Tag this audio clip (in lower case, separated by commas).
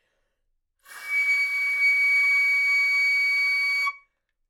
music, musical instrument, wind instrument